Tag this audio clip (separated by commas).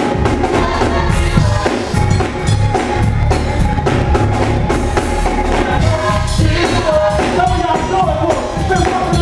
Choir, Music, Male singing, Female singing